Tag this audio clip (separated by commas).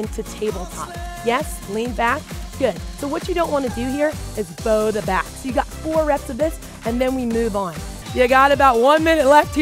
Music, Speech